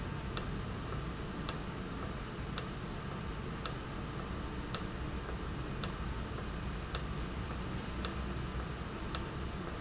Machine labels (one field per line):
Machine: valve